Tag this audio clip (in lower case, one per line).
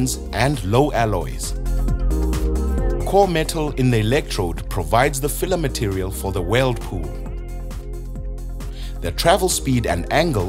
arc welding